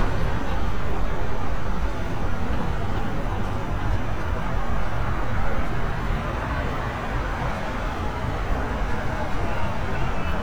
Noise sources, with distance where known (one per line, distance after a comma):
unidentified human voice